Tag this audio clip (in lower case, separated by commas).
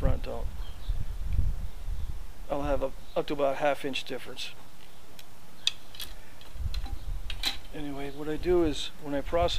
animal, speech